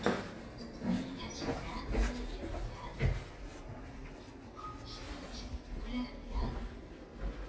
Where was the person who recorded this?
in an elevator